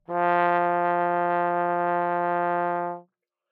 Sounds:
Brass instrument, Music, Musical instrument

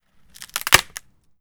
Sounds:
Wood, Crack

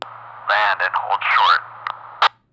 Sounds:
man speaking, Speech, Human voice

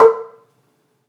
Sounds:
Percussion, xylophone, Musical instrument, Mallet percussion, Music

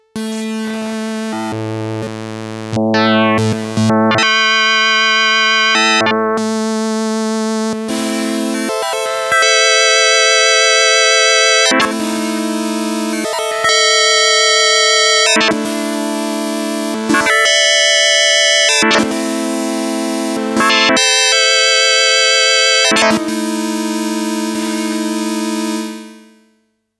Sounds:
Musical instrument, Music, Keyboard (musical)

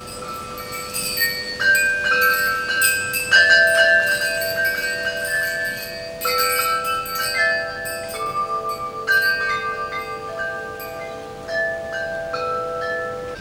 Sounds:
Wind chime, Bell, Chime

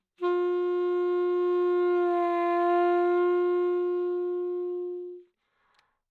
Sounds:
Wind instrument, Musical instrument, Music

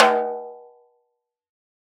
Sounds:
Snare drum, Drum, Music, Musical instrument, Percussion

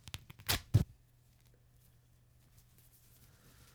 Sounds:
Tearing

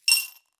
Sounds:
home sounds, Glass, Coin (dropping)

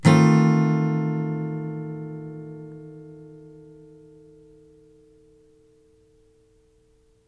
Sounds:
Plucked string instrument, Musical instrument, Strum, Music, Acoustic guitar, Guitar

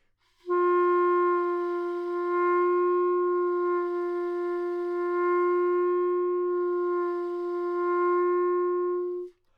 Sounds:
Music, Wind instrument, Musical instrument

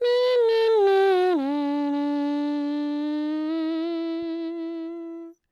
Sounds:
Human voice, Singing

